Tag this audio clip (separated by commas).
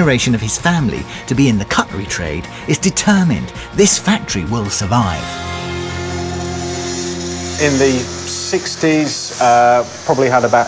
Speech, Music